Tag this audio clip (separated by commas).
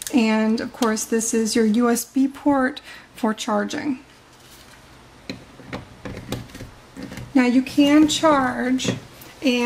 Speech